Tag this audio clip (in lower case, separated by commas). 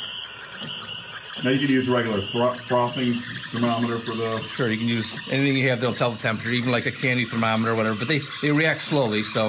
speech